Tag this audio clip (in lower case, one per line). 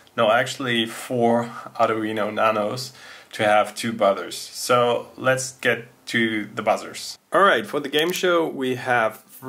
speech